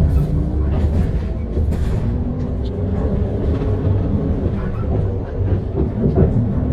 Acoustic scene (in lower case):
bus